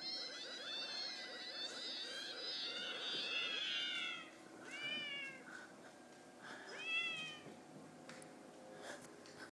Numerous cats are crying